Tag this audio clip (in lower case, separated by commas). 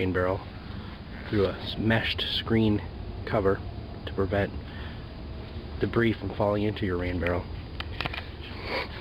speech